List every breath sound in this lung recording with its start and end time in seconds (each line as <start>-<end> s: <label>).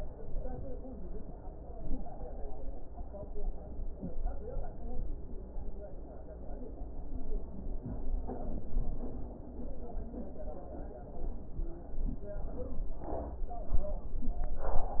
No breath sounds were labelled in this clip.